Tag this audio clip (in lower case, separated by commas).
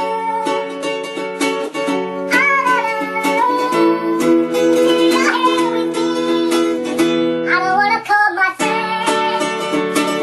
musical instrument, plucked string instrument, music, guitar